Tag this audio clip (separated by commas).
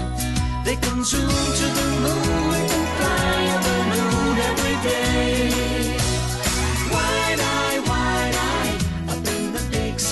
Music